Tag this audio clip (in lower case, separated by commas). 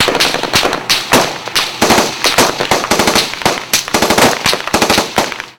explosion, gunfire